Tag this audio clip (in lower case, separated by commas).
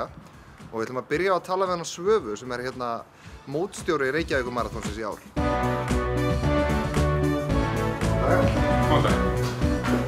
music, speech